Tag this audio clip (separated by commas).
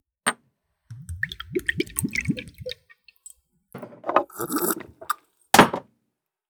Liquid